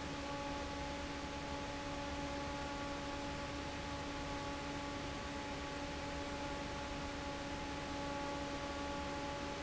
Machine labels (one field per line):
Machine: fan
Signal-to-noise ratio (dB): 0 dB